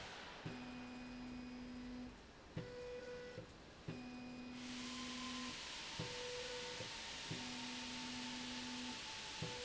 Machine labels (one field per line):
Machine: slide rail